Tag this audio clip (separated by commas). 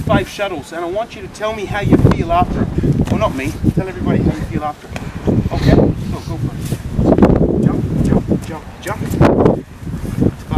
Speech